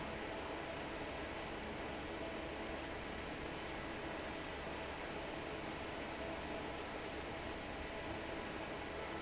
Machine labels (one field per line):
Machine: fan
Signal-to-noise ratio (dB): 6 dB